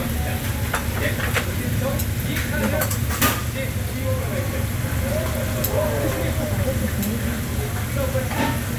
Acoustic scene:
restaurant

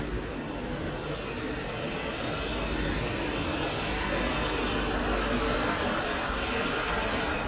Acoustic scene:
residential area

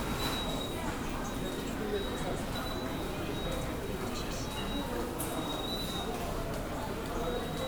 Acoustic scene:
subway station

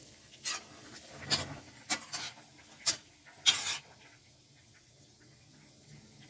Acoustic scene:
kitchen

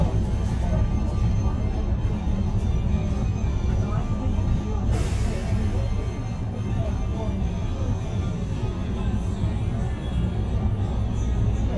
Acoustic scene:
bus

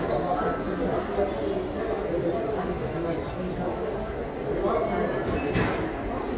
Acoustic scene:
crowded indoor space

